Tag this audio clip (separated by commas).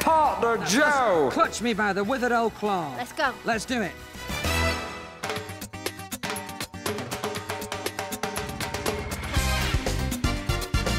Music, Speech